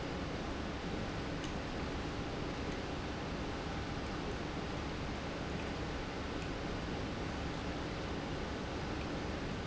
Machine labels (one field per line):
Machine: pump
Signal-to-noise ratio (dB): -6 dB